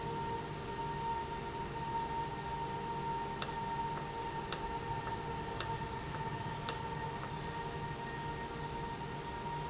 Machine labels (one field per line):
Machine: valve